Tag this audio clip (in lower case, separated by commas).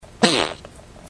fart